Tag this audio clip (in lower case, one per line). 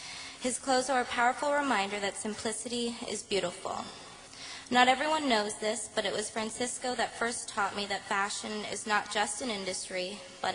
narration
woman speaking
speech